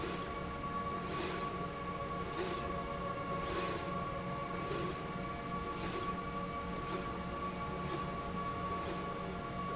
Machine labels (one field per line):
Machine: slide rail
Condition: normal